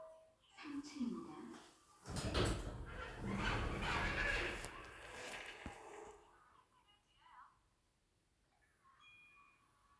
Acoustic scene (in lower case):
elevator